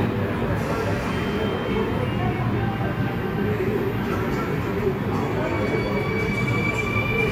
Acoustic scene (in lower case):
subway station